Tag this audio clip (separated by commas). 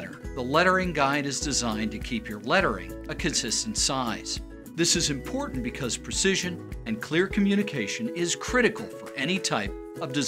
Speech, Music